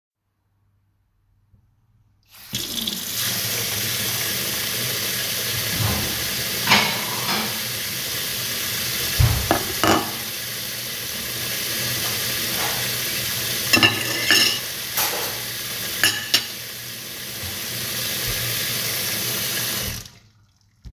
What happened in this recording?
The phone is placed on the kitchen counter. I turned on the running water in the sink. While the water was running I handled plates and cutlery in the sink.